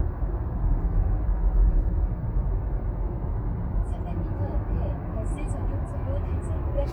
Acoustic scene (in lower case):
car